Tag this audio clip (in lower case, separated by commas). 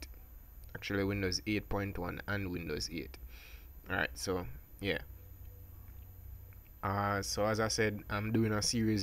speech